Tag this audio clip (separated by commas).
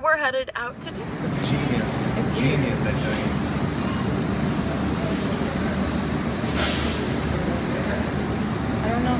Speech